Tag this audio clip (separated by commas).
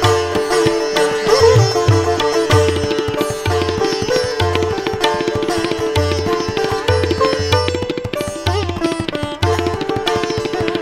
Percussion, Tabla